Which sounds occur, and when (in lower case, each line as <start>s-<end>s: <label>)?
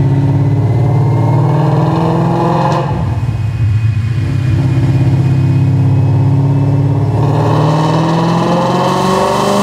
0.0s-9.6s: medium engine (mid frequency)
1.2s-2.9s: accelerating
7.1s-9.6s: accelerating